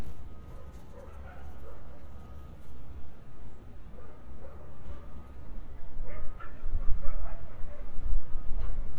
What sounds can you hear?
dog barking or whining